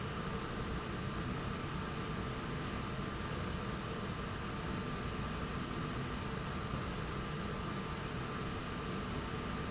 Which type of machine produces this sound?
slide rail